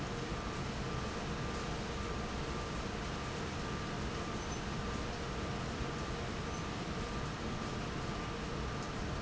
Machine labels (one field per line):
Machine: fan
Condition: normal